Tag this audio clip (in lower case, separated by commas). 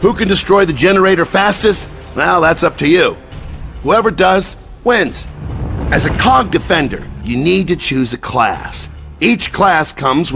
music, speech